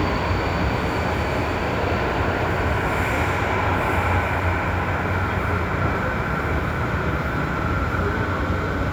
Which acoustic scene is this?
subway station